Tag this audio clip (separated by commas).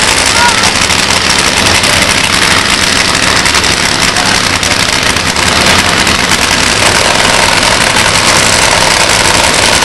Speech